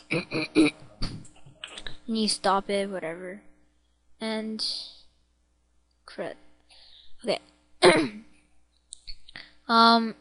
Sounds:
speech

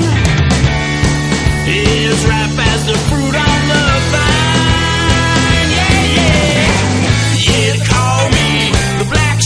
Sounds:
music

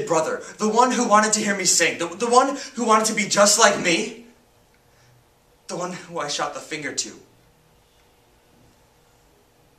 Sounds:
monologue, speech

